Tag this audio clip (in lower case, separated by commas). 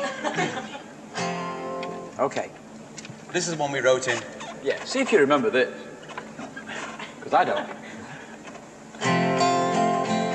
speech, laughter, music